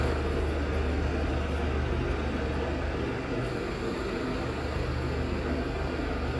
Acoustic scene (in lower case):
street